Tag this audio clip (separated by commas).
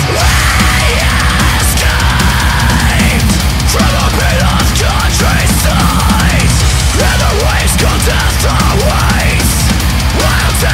Music